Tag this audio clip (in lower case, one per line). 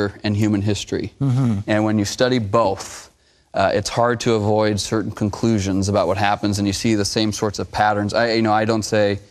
speech